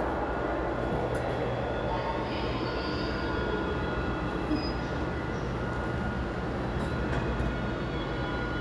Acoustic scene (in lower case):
elevator